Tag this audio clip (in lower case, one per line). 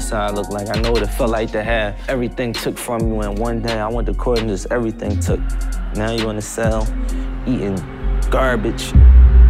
rapping